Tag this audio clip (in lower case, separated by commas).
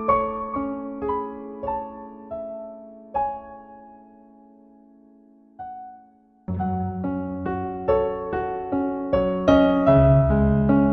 music